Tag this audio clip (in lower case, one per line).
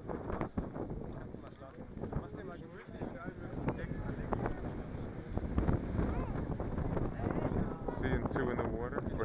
speech